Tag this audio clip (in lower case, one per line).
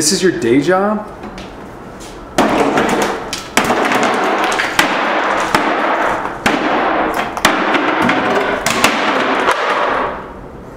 thump